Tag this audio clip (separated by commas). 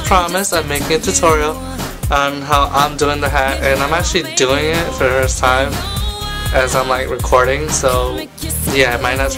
Speech, Music